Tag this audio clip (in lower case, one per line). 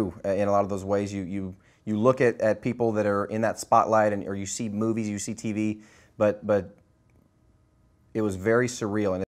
speech